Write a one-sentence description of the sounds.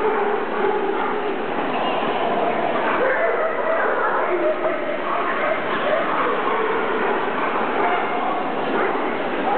A crowd chit chats, dogs bark